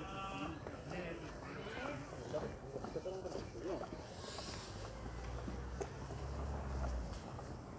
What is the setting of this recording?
residential area